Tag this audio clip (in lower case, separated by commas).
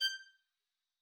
music, musical instrument, bowed string instrument